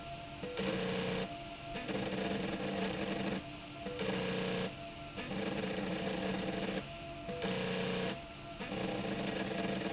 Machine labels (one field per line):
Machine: slide rail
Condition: abnormal